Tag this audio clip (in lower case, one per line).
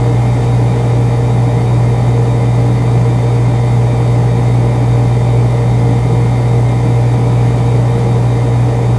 engine